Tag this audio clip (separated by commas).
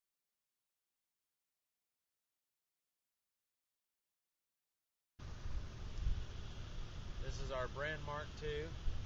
Speech